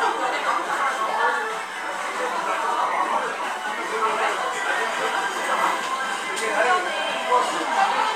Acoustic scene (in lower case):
restaurant